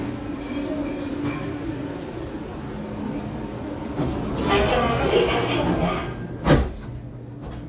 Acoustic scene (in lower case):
subway train